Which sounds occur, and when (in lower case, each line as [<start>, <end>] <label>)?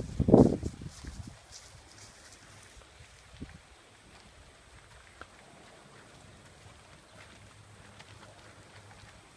[0.00, 1.36] wind noise (microphone)
[0.00, 3.23] footsteps
[0.00, 9.35] background noise
[1.59, 1.80] wind noise (microphone)
[3.29, 3.58] wind noise (microphone)
[5.14, 5.24] tick
[6.03, 9.35] footsteps